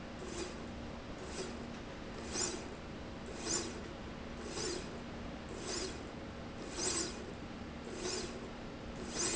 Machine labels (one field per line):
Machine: slide rail